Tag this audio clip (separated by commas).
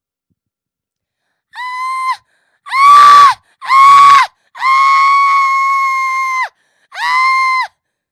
Screaming, Human voice